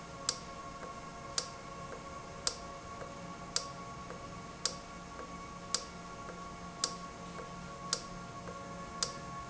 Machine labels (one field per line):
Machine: valve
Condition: normal